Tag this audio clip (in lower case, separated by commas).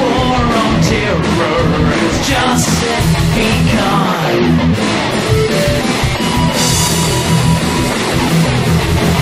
music, exciting music, rhythm and blues